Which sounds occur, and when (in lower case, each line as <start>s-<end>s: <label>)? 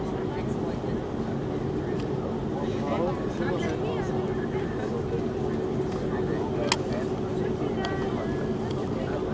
0.0s-1.4s: speech
0.0s-9.3s: aircraft
0.0s-9.3s: conversation
1.8s-4.9s: speech
1.9s-2.0s: tick
5.4s-9.3s: speech
6.6s-6.8s: tick
7.8s-7.9s: tick
8.6s-8.8s: tick